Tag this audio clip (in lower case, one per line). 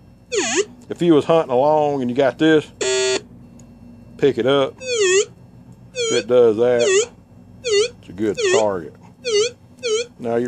speech